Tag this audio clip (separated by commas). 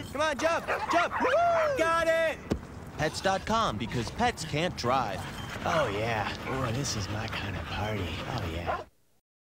Speech